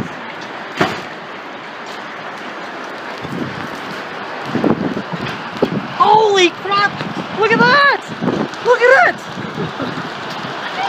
Rain is falling and a man starts to scream